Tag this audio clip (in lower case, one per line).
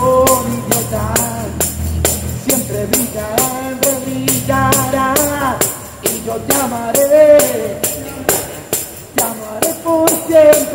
playing tambourine